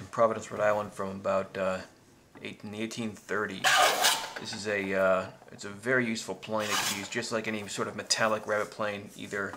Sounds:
Wood, Speech

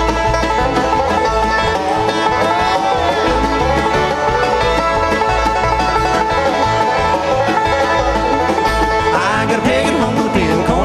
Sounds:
Music

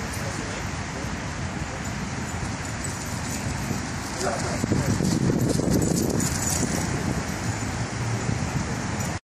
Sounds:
Speech

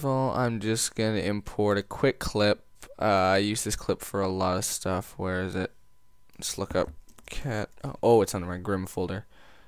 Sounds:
Speech

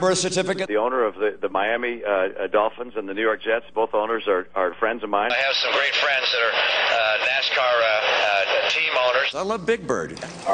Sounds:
Speech

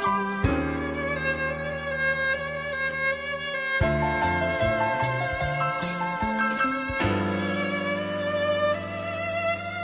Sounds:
Bowed string instrument, Music

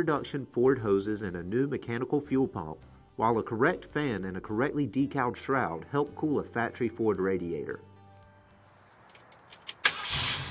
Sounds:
Car, Vehicle

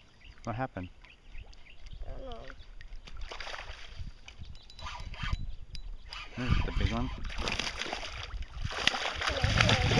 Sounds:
Speech

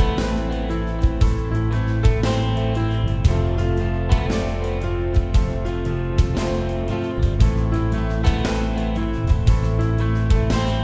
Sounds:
Music

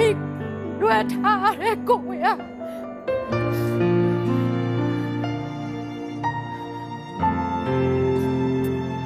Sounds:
Speech, Music, Sad music

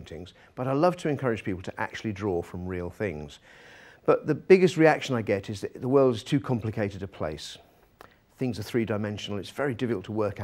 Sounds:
Speech

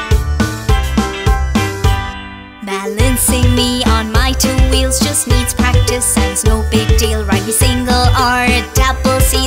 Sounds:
Music

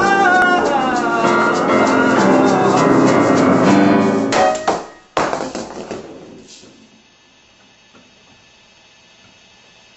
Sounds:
Music, Piano, Maraca, Singing, Musical instrument

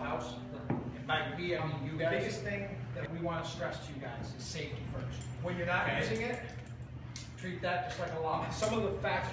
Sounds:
Speech

